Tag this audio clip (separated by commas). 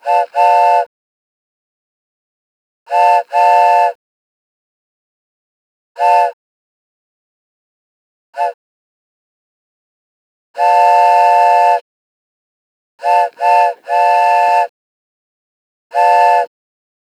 Rail transport, Train, Vehicle